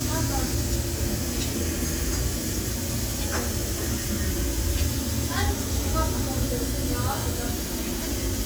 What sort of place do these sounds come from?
restaurant